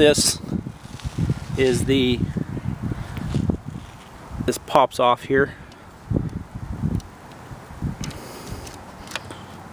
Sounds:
Speech

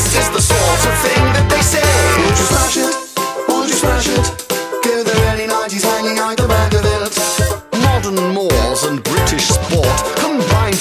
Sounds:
Music

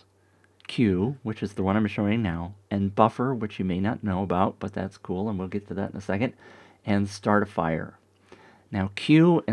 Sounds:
Speech

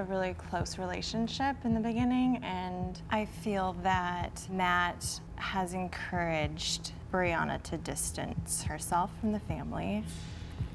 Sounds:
Speech

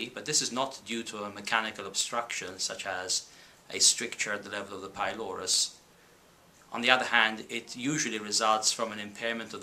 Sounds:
Speech

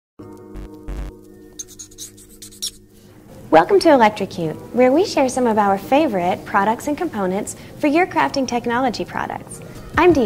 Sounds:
Music, Speech

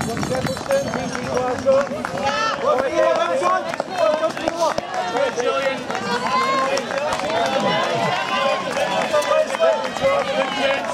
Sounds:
outside, rural or natural, Run, Speech

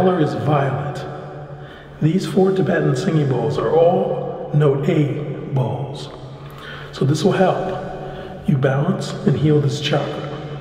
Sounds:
Speech

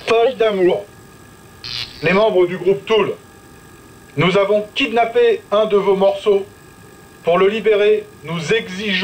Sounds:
Speech

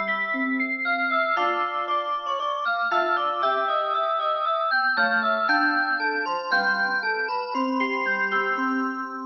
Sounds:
Music

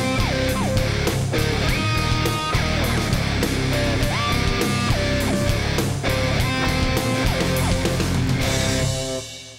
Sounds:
Music

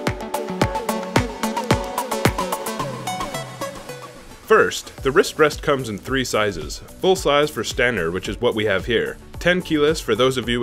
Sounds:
Music, Speech

